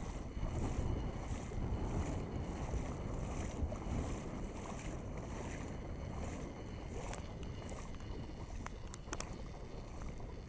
Waves of water hitting the beach